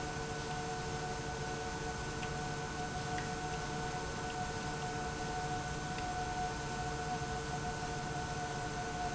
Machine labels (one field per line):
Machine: pump